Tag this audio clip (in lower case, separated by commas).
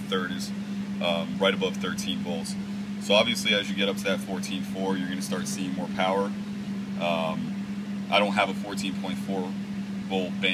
inside a small room, speech